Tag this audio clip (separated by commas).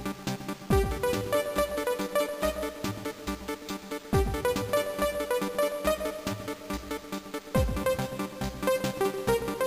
Rhythm and blues, Music